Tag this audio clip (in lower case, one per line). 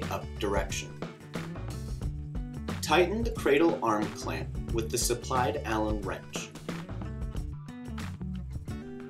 speech
music